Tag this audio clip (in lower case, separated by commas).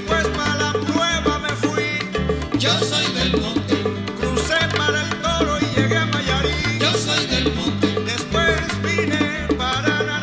salsa music, singing, music